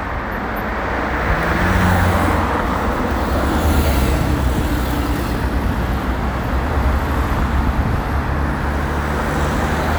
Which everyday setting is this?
street